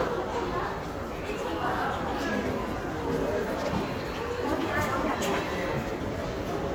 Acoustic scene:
crowded indoor space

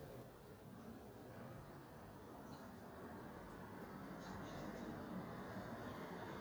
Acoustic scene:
residential area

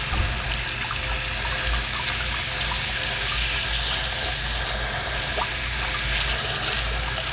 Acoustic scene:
restroom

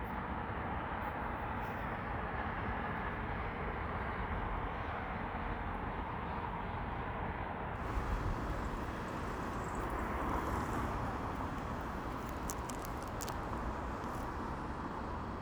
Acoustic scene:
street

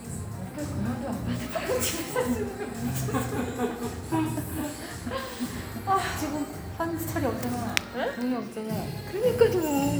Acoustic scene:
cafe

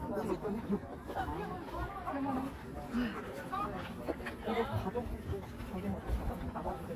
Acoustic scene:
park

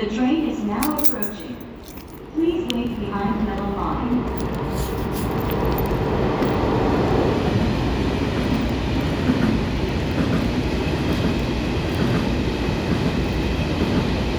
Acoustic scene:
subway station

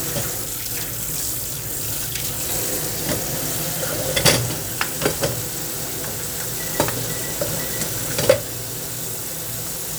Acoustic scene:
kitchen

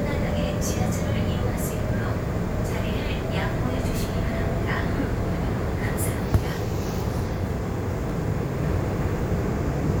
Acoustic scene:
subway train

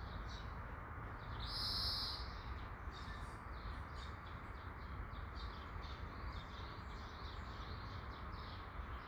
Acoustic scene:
park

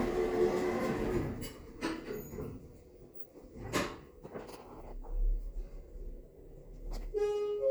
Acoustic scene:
elevator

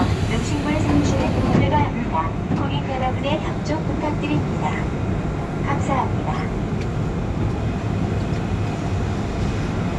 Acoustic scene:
subway train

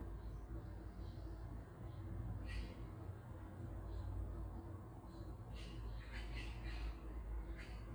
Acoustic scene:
park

